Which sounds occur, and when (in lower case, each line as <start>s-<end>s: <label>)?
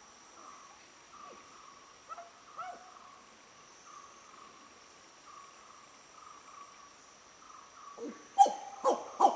0.0s-9.3s: insect
0.3s-0.7s: bird song
1.0s-1.8s: bird song
1.2s-1.4s: owl
2.0s-2.2s: owl
2.5s-3.3s: bird song
2.5s-2.7s: owl
3.8s-4.8s: bird song
5.2s-5.9s: bird song
6.1s-6.9s: bird song
7.4s-8.2s: bird song
8.0s-8.2s: hoot
8.4s-9.3s: hoot
9.0s-9.3s: bird song